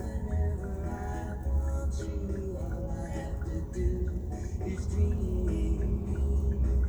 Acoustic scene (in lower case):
car